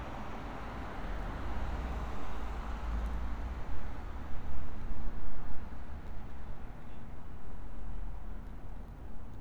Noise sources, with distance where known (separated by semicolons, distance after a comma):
background noise